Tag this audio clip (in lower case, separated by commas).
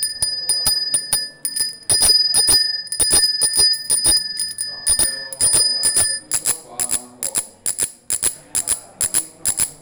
alarm, vehicle, bell, bicycle bell, bicycle